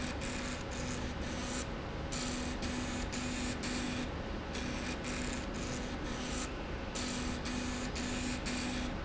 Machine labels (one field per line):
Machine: slide rail